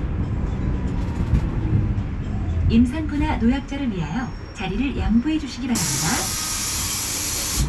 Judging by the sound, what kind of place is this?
bus